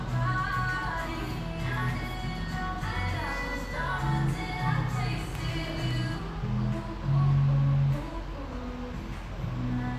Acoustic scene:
cafe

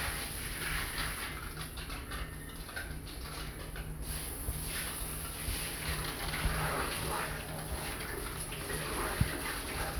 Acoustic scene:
restroom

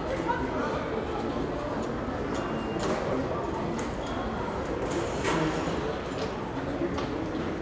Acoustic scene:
crowded indoor space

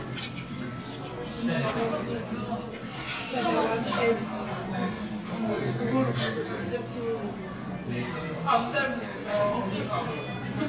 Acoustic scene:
crowded indoor space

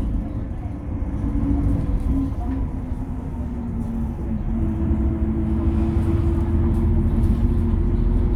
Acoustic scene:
bus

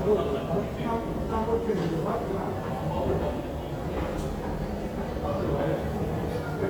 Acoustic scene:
street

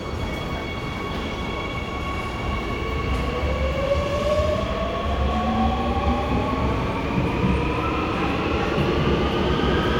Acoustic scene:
subway station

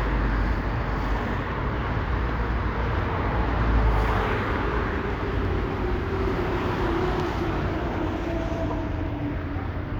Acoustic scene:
street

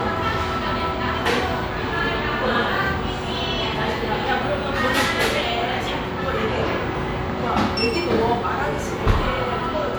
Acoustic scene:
restaurant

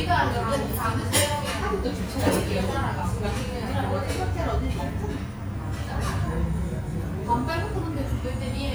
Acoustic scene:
restaurant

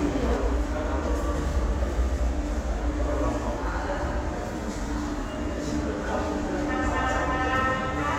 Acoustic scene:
subway station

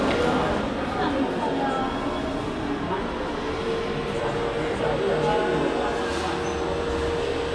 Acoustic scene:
crowded indoor space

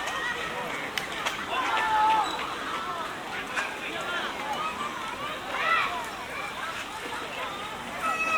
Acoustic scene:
park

